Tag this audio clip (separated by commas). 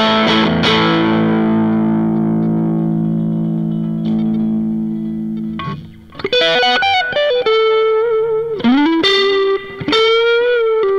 Music, Guitar, Effects unit